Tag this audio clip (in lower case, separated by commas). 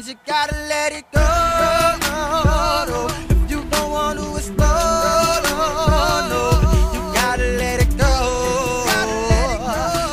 music, hip hop music, rhythm and blues